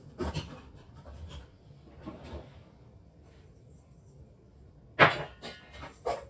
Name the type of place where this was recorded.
kitchen